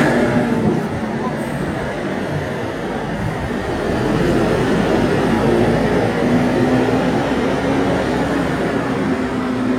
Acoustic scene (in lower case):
street